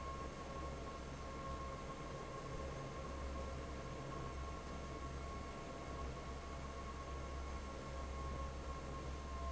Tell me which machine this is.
fan